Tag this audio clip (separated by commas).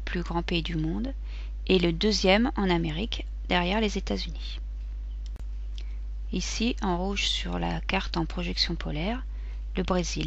Speech